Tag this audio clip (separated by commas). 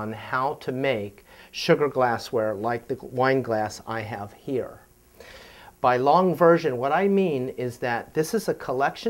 Speech